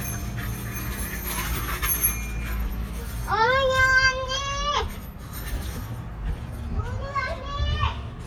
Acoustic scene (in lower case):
residential area